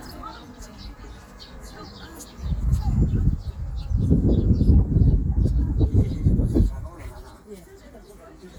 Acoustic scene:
park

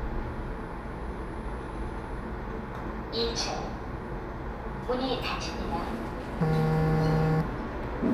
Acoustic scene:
elevator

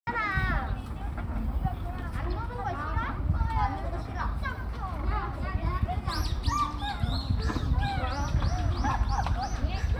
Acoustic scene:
park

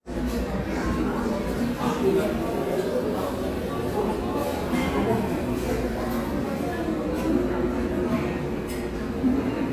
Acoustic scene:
crowded indoor space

